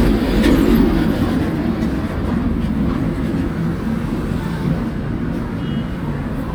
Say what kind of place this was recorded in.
street